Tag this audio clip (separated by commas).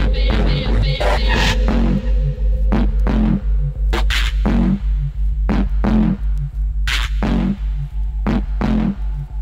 Electronic music, Music, Drum and bass